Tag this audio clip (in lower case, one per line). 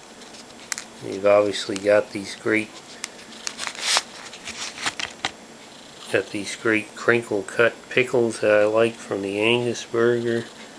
speech